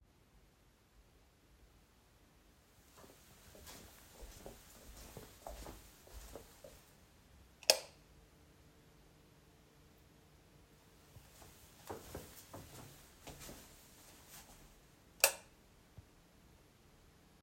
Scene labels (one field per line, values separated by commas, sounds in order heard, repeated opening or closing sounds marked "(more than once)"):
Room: hallway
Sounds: footsteps, light switch